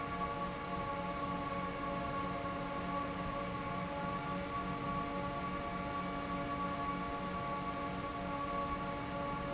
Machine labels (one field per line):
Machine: fan